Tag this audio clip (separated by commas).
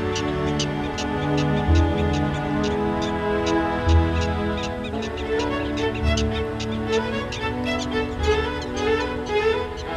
Music